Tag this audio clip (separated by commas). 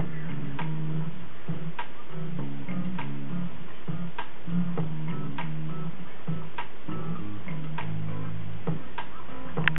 Music